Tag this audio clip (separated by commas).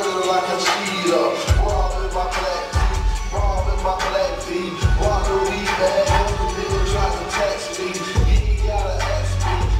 Music